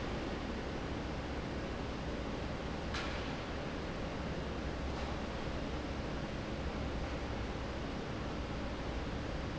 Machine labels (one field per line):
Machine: fan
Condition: normal